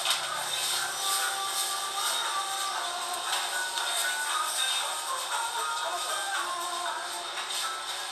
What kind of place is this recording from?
crowded indoor space